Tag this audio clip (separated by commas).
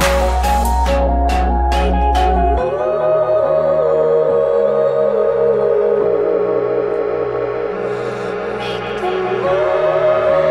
Ambient music